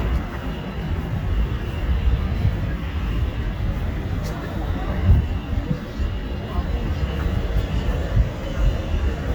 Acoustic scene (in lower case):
residential area